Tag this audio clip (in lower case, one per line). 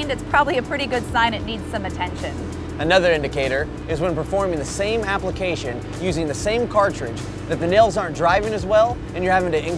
music
speech